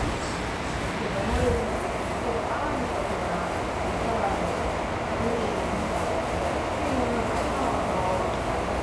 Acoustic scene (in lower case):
subway station